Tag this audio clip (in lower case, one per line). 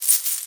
domestic sounds
coin (dropping)